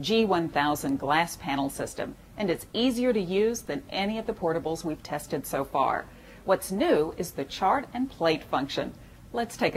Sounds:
speech

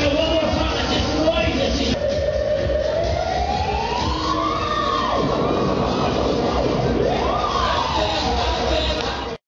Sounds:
speech, music

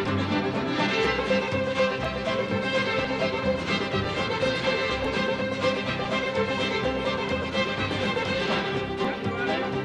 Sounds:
speech, music

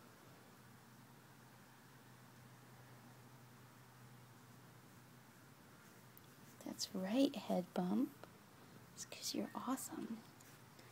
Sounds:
speech, whispering

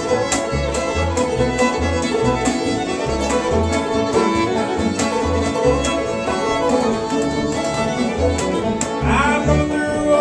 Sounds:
bowed string instrument, violin, music, musical instrument, playing banjo, banjo

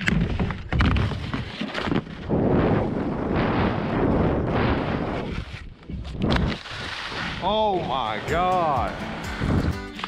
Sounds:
skiing

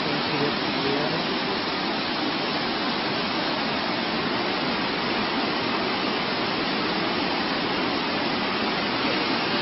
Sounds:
speech

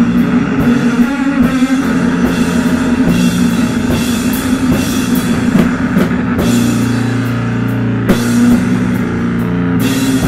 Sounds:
heavy metal, drum kit, musical instrument, rock music, music, drum

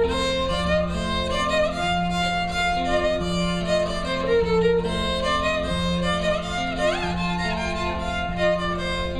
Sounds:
carnatic music, guitar, violin, music, musical instrument, plucked string instrument, bowed string instrument

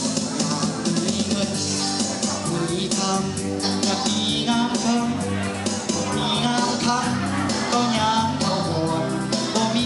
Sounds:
music, male singing

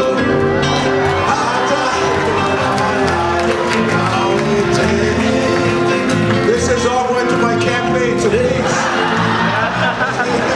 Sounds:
male singing, music

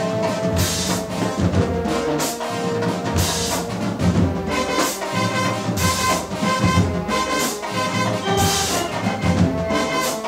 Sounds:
traditional music, music

